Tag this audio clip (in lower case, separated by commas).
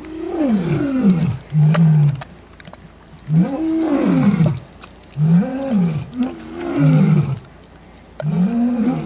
roaring cats, animal, wild animals, roar